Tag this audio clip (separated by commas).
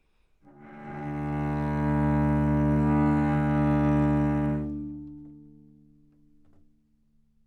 Bowed string instrument, Music, Musical instrument